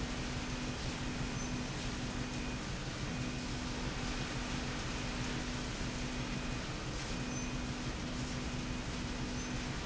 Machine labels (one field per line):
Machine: slide rail